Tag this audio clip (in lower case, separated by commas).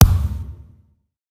thump